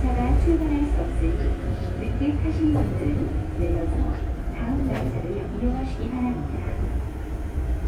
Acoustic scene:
subway train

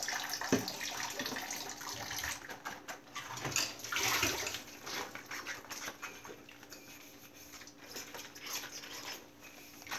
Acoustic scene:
kitchen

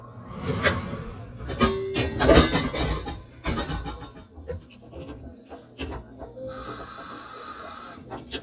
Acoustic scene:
kitchen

